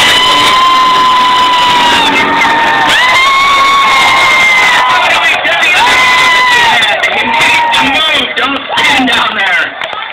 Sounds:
Vehicle, Speech

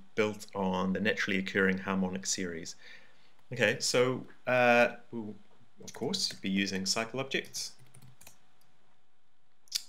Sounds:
Speech

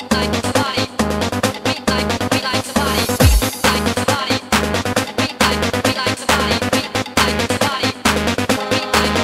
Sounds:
Dance music

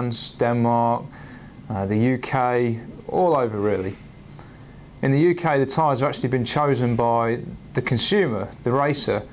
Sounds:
Speech

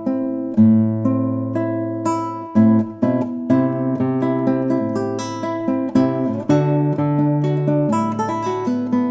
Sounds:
Guitar, Strum, Music, Musical instrument, Plucked string instrument, Acoustic guitar

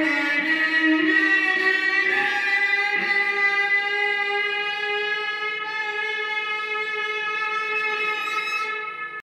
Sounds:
Musical instrument, Music, Violin

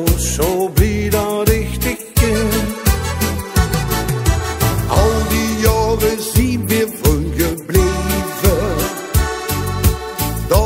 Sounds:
Music

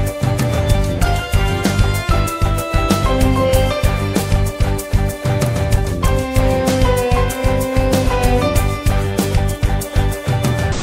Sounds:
Music, Musical instrument, Bass drum, Drum kit

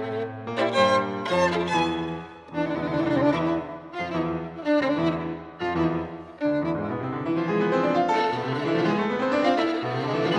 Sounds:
Musical instrument, Music, Violin

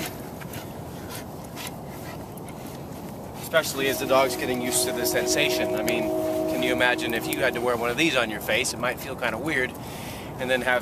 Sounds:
Speech, Animal

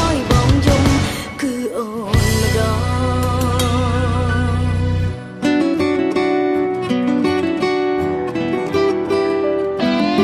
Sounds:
Music, Singing

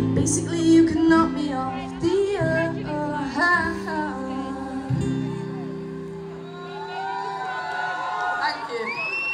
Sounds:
Guitar, Acoustic guitar, Musical instrument, Female singing, Plucked string instrument, Singing, Music

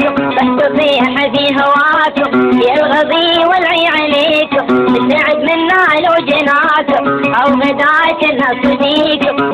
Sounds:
Music

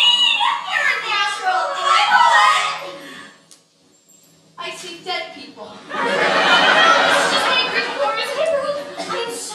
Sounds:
Speech

